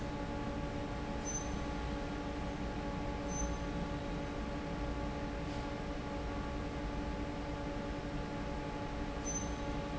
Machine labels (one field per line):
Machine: fan